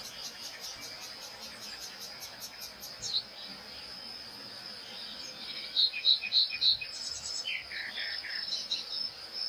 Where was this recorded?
in a park